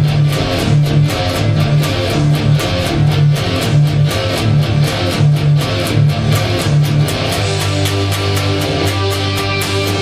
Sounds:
Guitar, Plucked string instrument, Music, Musical instrument, Electric guitar

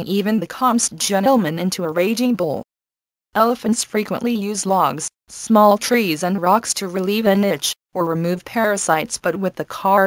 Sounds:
Speech

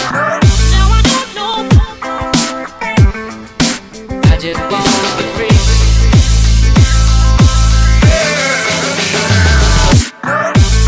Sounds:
Music

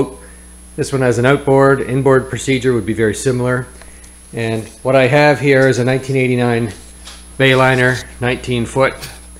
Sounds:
inside a large room or hall, Speech

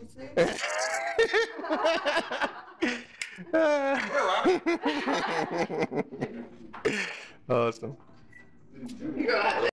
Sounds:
Speech

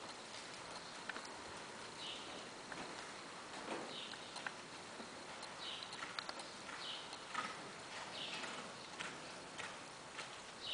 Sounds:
horse clip-clop, Horse, Clip-clop, Animal

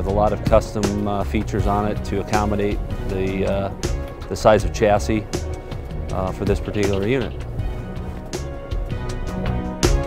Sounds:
Music, Speech

